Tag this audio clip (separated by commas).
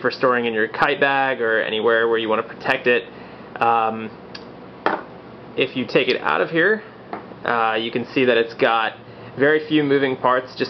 Speech